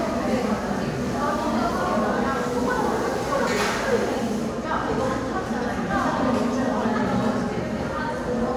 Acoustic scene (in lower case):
crowded indoor space